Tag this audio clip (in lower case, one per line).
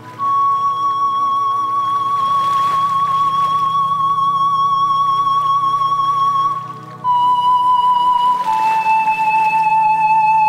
flute
music